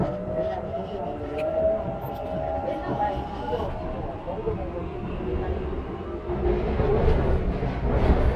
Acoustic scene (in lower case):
subway train